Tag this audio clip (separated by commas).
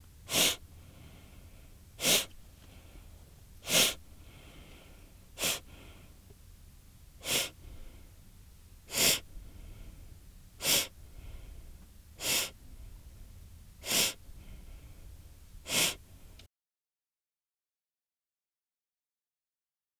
Respiratory sounds